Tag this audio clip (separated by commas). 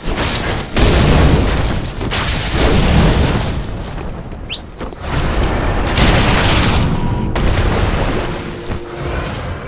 Boom